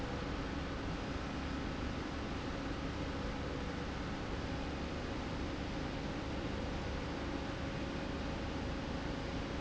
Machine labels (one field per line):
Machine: slide rail